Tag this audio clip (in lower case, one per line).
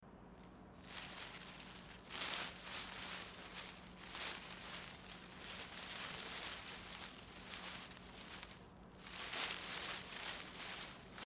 wind